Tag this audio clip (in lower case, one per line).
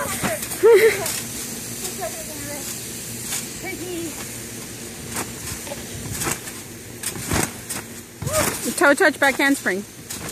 kid speaking
speech